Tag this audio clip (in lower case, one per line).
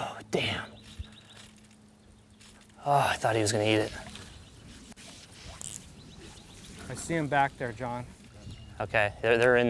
speech